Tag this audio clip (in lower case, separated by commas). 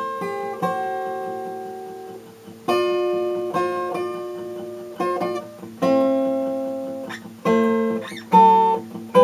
guitar, musical instrument, acoustic guitar, strum, music